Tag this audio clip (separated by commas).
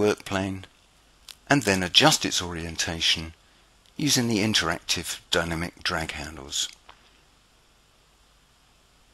Speech